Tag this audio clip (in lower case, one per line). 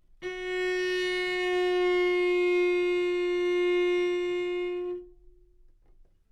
musical instrument
music
bowed string instrument